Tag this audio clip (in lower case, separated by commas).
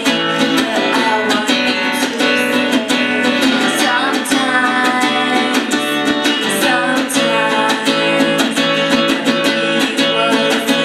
music, female singing